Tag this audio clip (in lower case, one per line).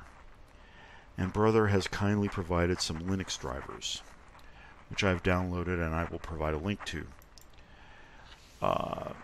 speech